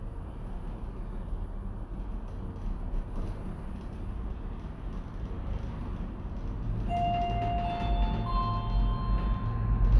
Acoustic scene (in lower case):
elevator